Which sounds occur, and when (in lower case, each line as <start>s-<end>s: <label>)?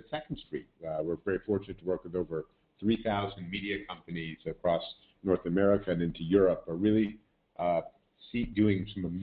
0.0s-9.2s: noise
0.1s-0.6s: male speech
0.8s-2.4s: male speech
2.8s-4.9s: male speech
5.1s-7.2s: male speech
7.5s-7.8s: male speech
8.2s-9.2s: male speech